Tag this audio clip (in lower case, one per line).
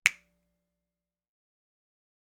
finger snapping
hands